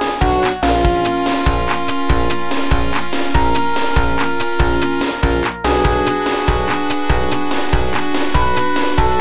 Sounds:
music, video game music

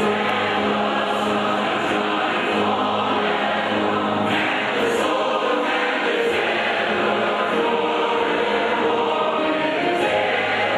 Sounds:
choir, music

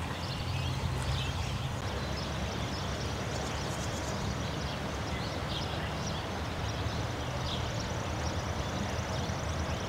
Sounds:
water vehicle, vehicle

